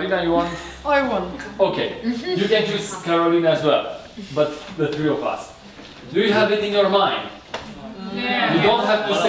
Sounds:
speech

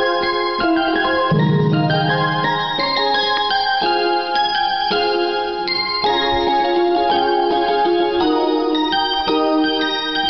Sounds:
keyboard (musical), musical instrument, piano, inside a small room, music

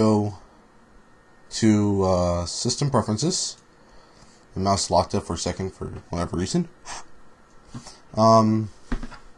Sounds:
male speech, speech, monologue

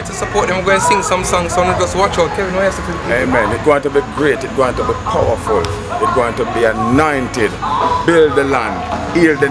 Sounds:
speech

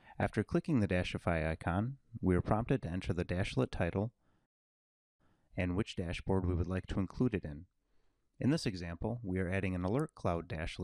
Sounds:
speech

